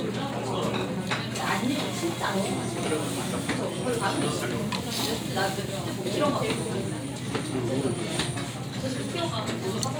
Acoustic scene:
crowded indoor space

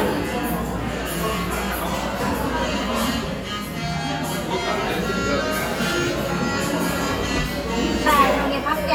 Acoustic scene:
cafe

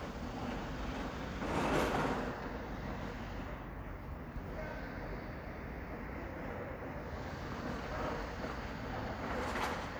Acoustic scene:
residential area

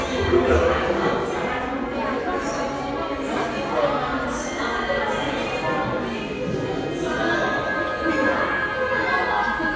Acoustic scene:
crowded indoor space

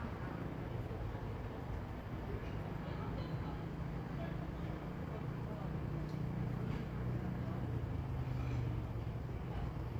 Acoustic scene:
residential area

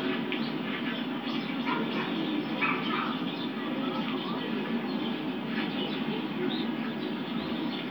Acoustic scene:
park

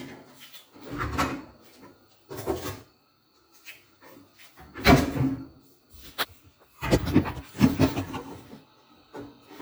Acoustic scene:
kitchen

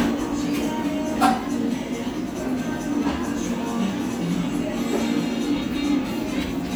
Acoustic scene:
cafe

